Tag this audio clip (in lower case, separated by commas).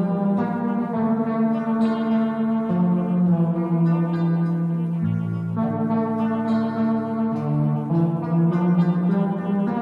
brass instrument, music